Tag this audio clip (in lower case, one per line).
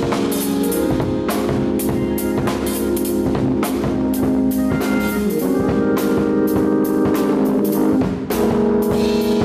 music
exciting music